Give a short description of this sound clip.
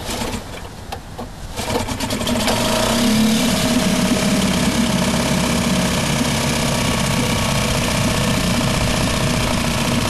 A motor is started and idles, and water is gurgling